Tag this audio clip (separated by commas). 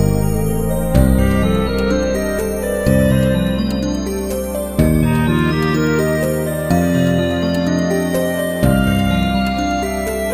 Music